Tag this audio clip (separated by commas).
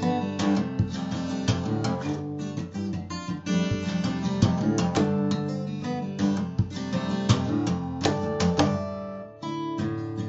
Music